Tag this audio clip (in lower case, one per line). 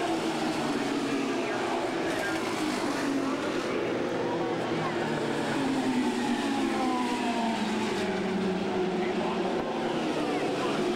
car passing by